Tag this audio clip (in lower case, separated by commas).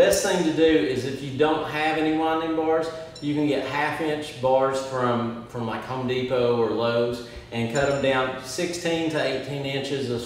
speech